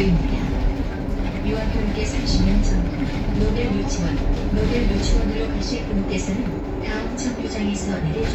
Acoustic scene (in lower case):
bus